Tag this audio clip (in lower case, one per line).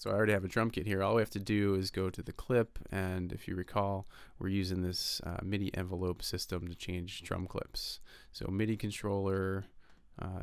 speech